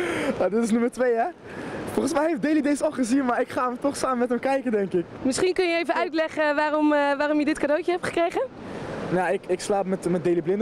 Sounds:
speech

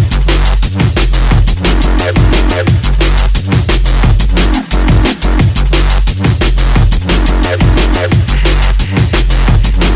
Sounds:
music

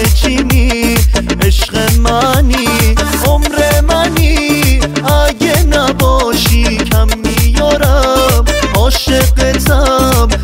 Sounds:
music, house music

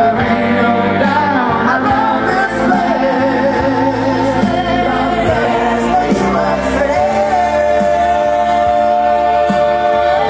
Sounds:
male singing, music, crowd

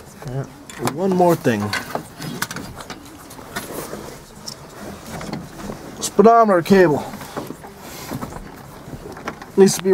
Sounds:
vehicle, speech, car

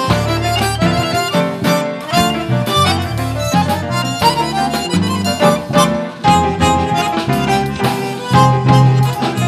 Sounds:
music, accordion, jazz

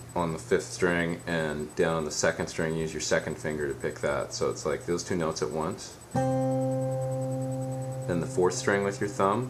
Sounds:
speech, music

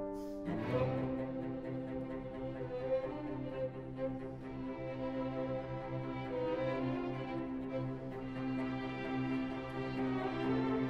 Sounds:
music, cello, fiddle, playing cello, musical instrument

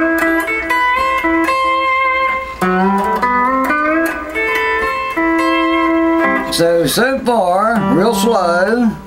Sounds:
music, speech

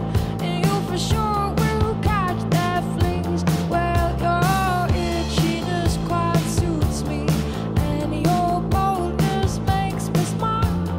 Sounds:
music, singing, independent music

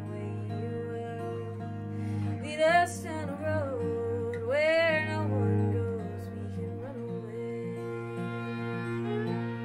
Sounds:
acoustic guitar, musical instrument, music, guitar

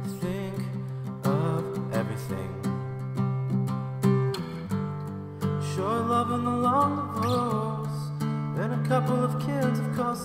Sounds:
music

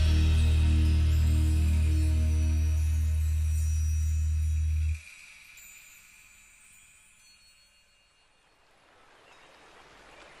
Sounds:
music

